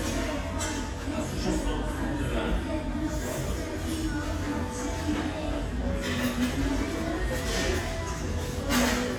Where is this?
in a restaurant